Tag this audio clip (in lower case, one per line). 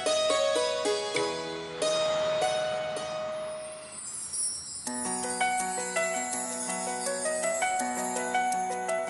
music